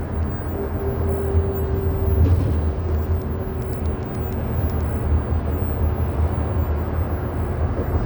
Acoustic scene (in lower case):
bus